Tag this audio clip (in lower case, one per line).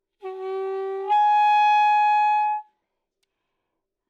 woodwind instrument
musical instrument
music